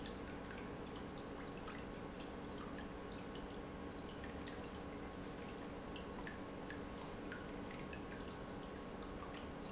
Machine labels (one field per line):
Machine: pump